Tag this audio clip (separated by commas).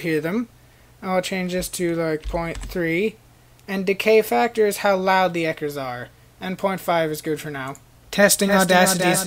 Speech